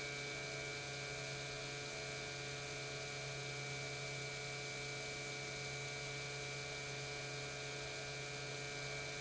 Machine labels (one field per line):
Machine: pump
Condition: normal